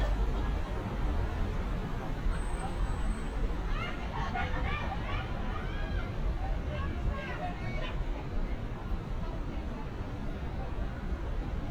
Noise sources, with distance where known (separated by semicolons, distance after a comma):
person or small group shouting